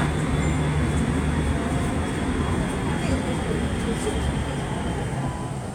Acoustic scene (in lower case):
subway train